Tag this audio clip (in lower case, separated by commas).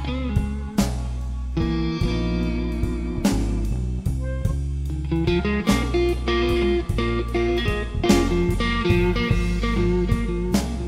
music